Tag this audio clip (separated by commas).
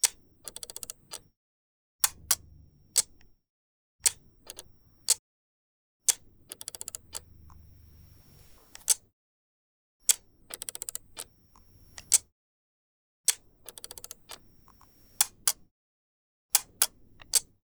Camera, Mechanisms